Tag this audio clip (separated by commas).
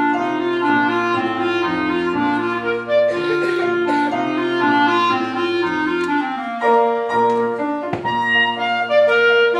Musical instrument, Music, Clarinet